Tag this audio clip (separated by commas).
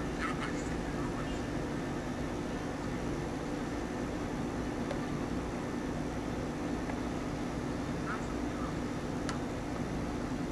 Speech